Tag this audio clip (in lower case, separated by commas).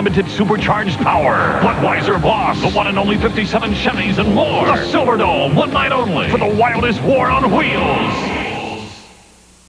speech, vehicle